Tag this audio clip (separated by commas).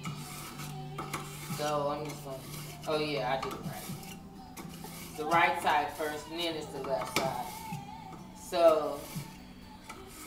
Music, Speech